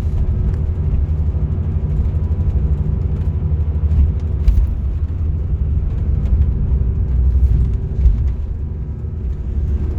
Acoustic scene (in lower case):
car